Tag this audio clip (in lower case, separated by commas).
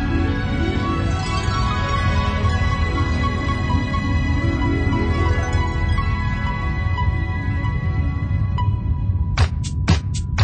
house music, music